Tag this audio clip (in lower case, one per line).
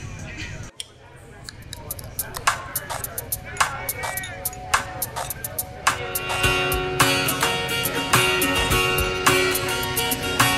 outside, rural or natural
speech
music